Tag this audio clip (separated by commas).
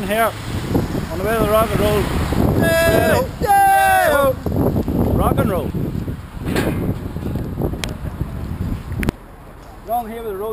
outside, urban or man-made, Speech